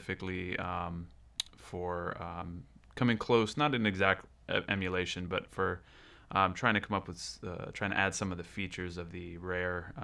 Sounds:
Speech

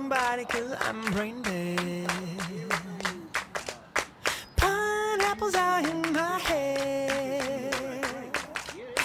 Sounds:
Speech

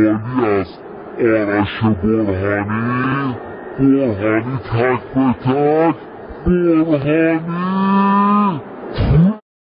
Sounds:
Speech

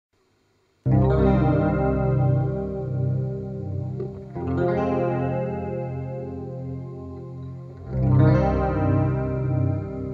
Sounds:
Blues, Music, Guitar

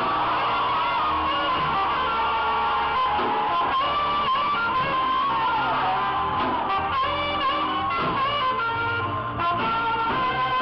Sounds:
Saxophone, Brass instrument

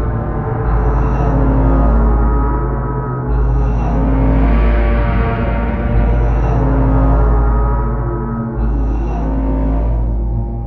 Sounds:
Music, Scary music

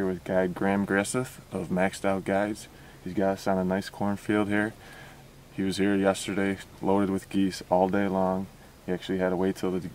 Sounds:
Speech

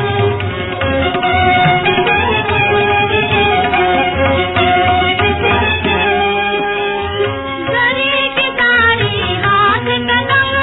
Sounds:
Middle Eastern music, Music

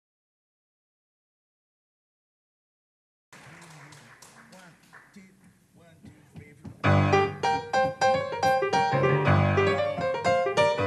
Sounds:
Musical instrument, Percussion, Piano, Music, Drum, Drum kit

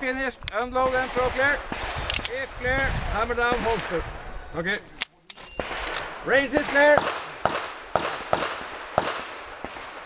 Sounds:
Speech, outside, rural or natural

